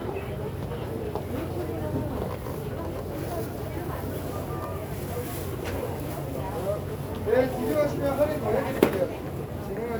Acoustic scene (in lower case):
crowded indoor space